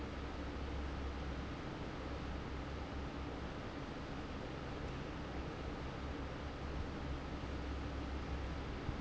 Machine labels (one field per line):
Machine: fan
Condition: normal